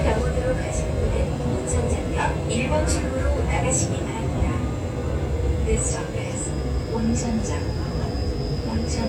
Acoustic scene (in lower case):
subway train